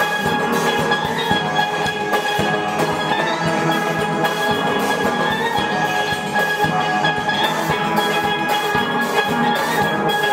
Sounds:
steelpan, music

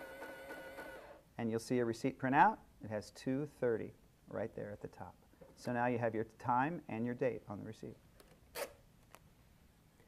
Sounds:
speech

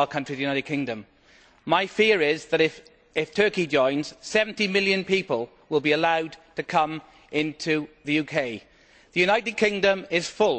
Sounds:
speech

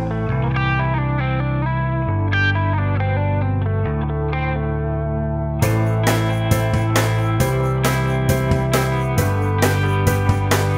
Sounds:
music

